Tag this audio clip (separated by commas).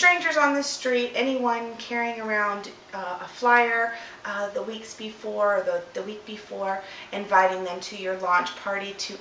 Speech